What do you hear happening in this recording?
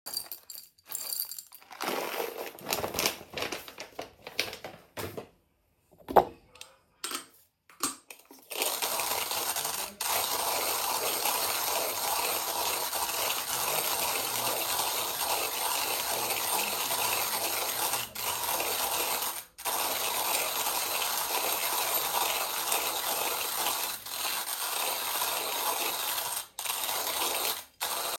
I pour coffee beans into a coffee grinder and close the lid. I then grind the coffee beans, producing a grinding sound.